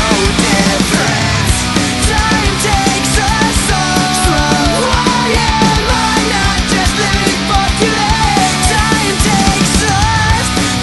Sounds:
music, vocal music

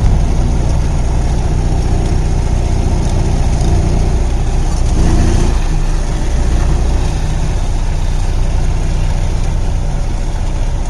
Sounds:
car, vehicle

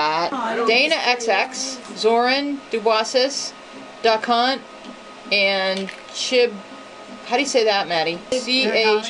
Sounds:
speech

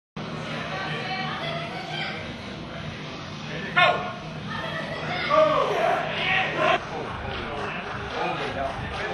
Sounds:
inside a large room or hall, speech

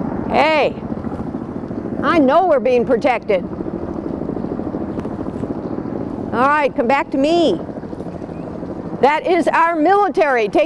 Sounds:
helicopter, speech

